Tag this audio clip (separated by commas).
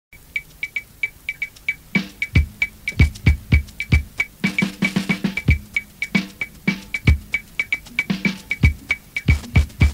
Music